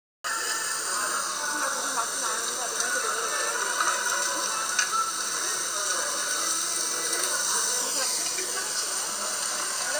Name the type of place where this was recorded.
restaurant